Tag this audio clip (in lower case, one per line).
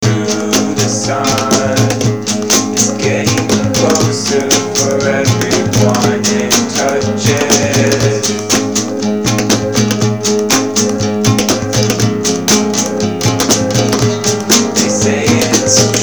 music
musical instrument
acoustic guitar
plucked string instrument
guitar